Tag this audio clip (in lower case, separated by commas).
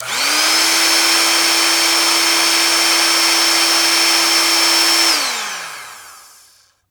home sounds, tools